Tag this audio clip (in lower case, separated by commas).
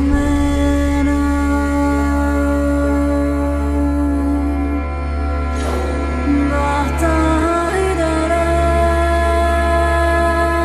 music, mantra